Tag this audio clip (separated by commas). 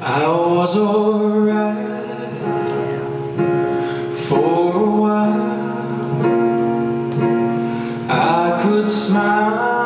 Music